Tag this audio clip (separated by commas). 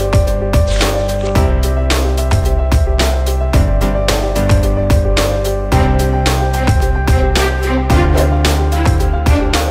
Music